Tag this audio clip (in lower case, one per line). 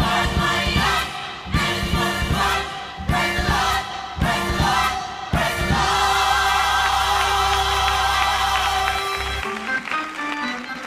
music
choir